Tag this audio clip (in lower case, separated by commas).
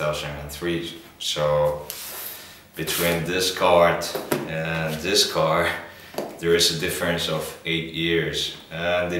speech